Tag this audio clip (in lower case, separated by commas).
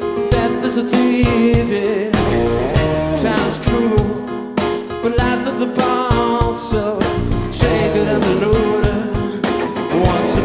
music